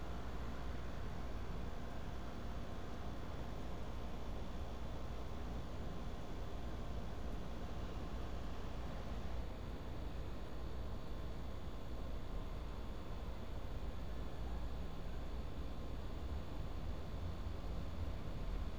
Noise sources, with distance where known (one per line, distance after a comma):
background noise